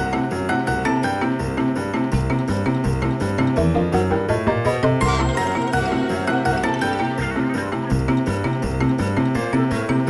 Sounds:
soundtrack music, music

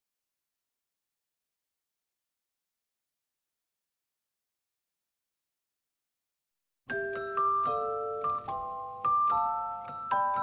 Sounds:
music

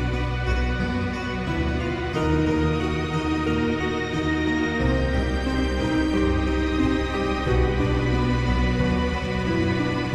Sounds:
music

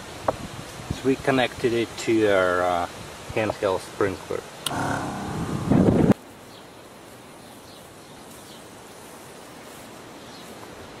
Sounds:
speech

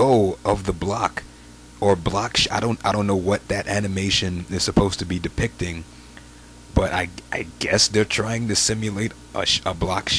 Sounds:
speech

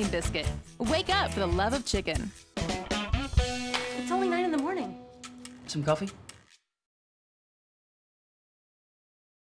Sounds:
speech, music

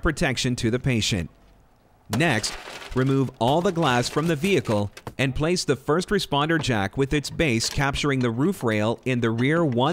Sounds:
speech

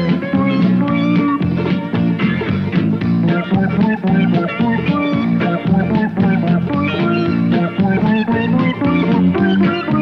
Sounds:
music

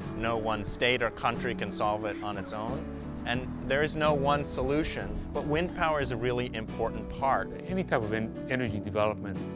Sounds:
speech, music

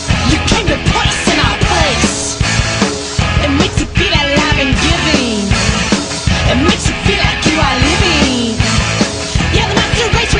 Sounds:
music

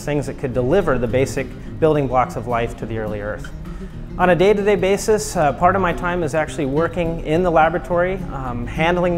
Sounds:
music, speech

